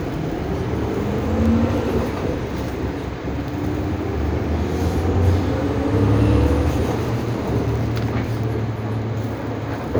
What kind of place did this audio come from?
bus